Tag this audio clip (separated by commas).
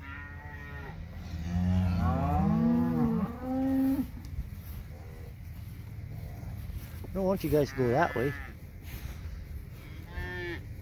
bull bellowing